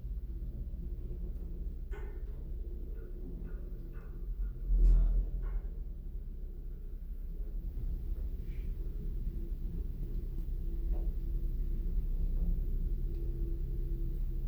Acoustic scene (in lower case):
elevator